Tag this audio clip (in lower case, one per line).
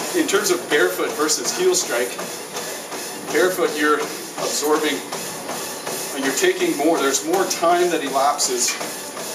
run
inside a large room or hall
speech